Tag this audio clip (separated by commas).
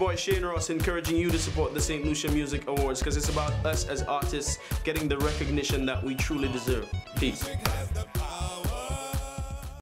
Music, Speech